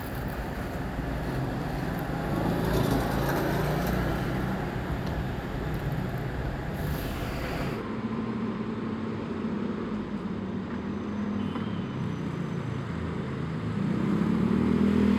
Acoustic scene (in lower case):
street